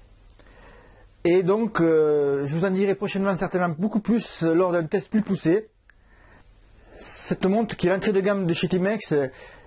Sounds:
Speech

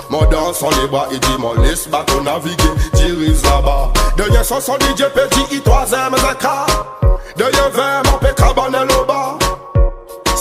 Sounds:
Music

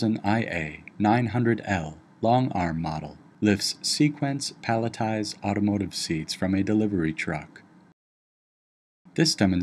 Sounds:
Speech

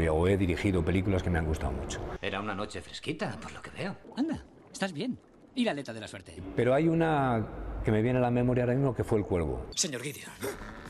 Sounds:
Speech

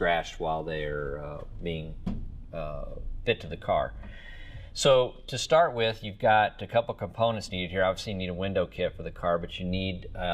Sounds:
Speech

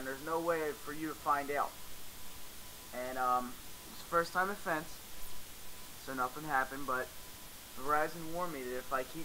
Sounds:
Speech

